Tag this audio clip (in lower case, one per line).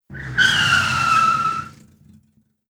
vehicle
car
motor vehicle (road)